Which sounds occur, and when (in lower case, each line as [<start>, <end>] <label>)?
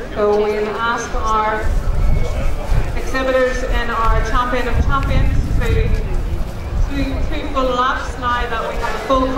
[0.00, 9.35] crowd
[0.01, 9.35] wind
[0.07, 1.65] woman speaking
[2.88, 5.43] woman speaking
[5.60, 6.08] woman speaking
[6.90, 9.35] woman speaking